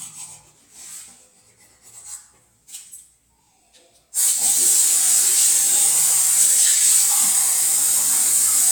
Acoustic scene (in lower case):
restroom